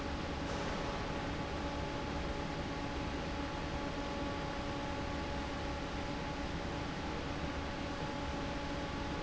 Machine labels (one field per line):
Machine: fan